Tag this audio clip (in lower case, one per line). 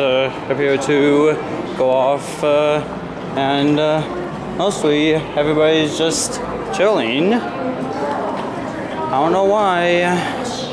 speech